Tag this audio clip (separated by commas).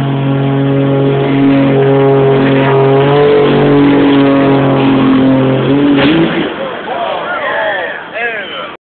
Vehicle